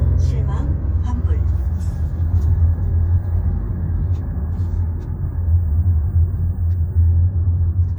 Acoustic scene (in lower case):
car